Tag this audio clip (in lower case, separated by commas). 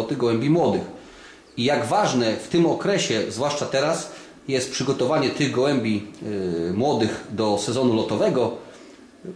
inside a small room, speech